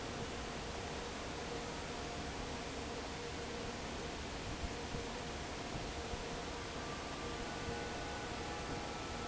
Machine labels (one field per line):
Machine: fan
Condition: normal